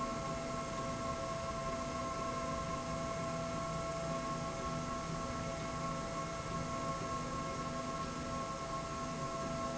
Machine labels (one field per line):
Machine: slide rail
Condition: normal